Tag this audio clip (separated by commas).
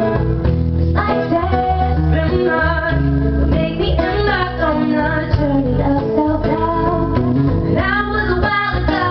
Female singing, Music